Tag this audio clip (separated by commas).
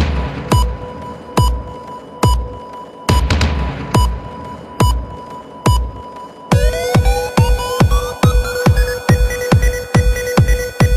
Techno, Electronic music, Music